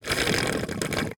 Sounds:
Water, Gurgling

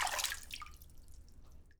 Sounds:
splatter, Liquid, Water

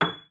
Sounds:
Music, Piano, Keyboard (musical), Musical instrument

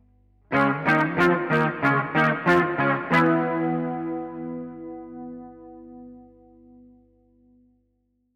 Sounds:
Music, Electric guitar, Plucked string instrument, Musical instrument, Guitar

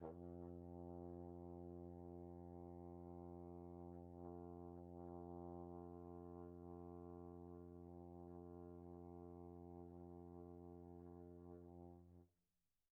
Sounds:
Musical instrument, Brass instrument, Music

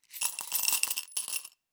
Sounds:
Coin (dropping), home sounds, Glass

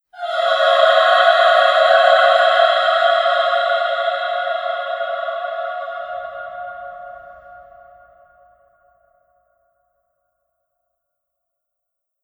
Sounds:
Human voice, Musical instrument, Music, Singing

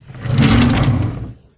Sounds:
Drawer open or close, Domestic sounds

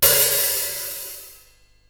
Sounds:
Percussion, Cymbal, Musical instrument, Music, Hi-hat

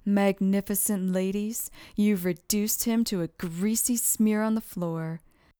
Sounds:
woman speaking, Human voice, Speech

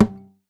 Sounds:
Thump

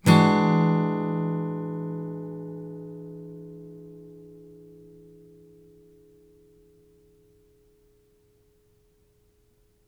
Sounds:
Musical instrument, Acoustic guitar, Strum, Plucked string instrument, Guitar, Music

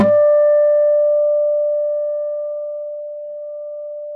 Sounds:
Acoustic guitar, Musical instrument, Guitar, Music, Plucked string instrument

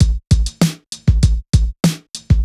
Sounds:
Percussion, Drum kit, Music, Musical instrument, Drum

